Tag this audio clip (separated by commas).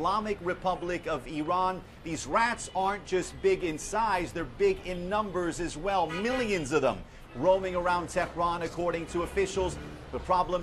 Speech